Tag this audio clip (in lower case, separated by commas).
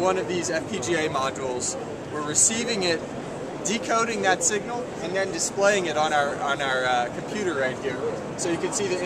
speech